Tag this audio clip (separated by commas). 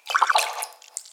Liquid, splatter